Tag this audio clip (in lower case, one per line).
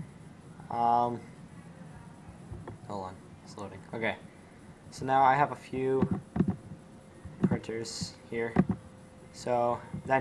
speech